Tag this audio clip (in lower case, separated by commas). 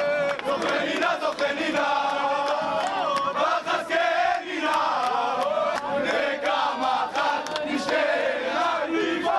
outside, urban or man-made